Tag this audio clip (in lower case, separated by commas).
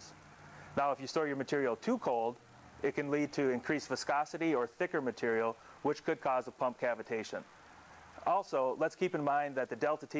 speech